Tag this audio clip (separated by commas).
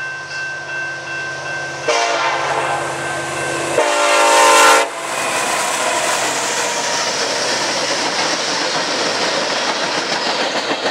train horning